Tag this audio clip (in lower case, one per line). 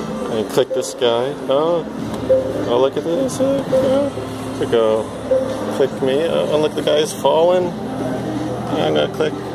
speech
music